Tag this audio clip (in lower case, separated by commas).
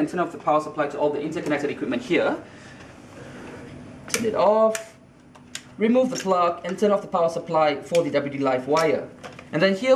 speech, inside a small room